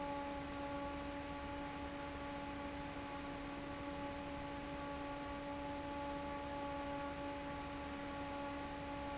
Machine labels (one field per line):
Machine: fan